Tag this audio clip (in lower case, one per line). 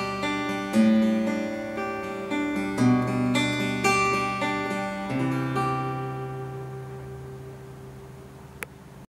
music
musical instrument
acoustic guitar
guitar